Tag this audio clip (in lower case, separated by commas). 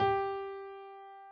musical instrument, music, piano, keyboard (musical)